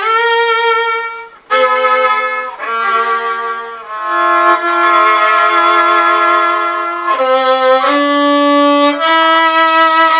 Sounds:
Violin, Music, Musical instrument

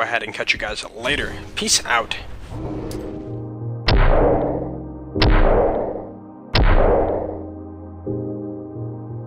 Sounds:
Speech, Music

